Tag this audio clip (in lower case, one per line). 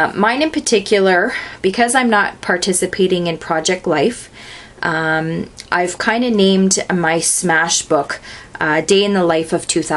speech